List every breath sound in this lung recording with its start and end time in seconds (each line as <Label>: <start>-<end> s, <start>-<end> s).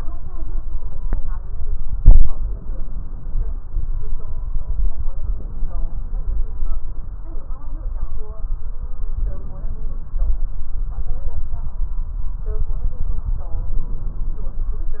Inhalation: 1.97-3.47 s, 5.25-6.51 s, 9.10-10.36 s, 13.50-14.75 s